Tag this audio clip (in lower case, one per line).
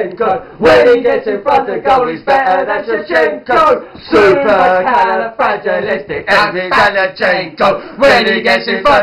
speech